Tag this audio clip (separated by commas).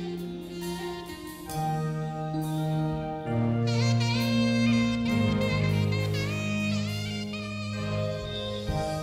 Music